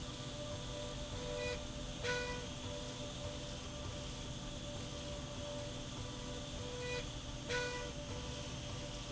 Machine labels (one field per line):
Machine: slide rail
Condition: normal